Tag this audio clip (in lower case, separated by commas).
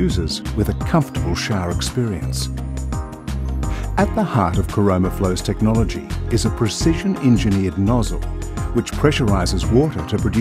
music, speech